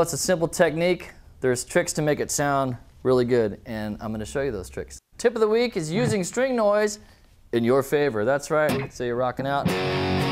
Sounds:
Music, Speech

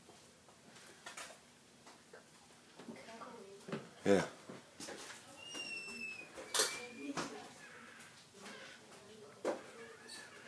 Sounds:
Tap, Speech

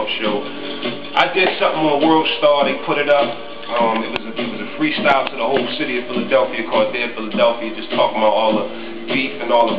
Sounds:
Speech, Music

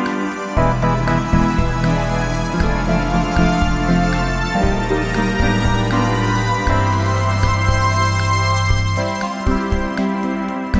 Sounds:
Music

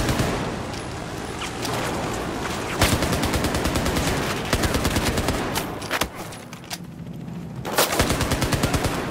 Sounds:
Fusillade

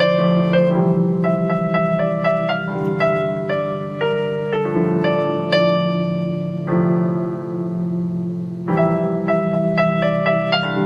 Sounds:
Music

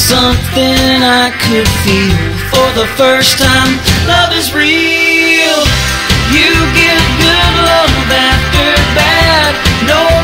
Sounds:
Country, Music

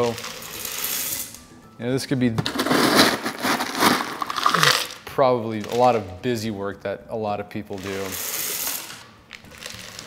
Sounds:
Speech, Music, inside a small room

